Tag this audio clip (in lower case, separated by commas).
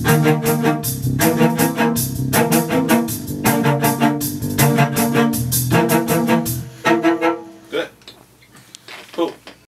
speech, cello, musical instrument, music